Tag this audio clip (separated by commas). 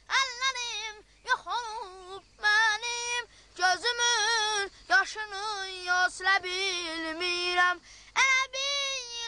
Child singing